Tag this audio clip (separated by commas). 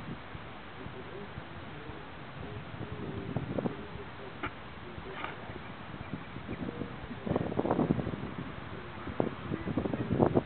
Speech